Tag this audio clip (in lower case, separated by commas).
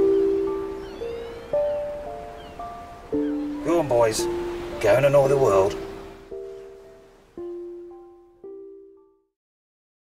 music, speech